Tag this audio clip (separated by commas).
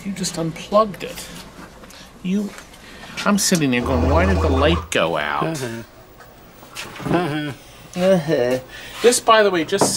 Speech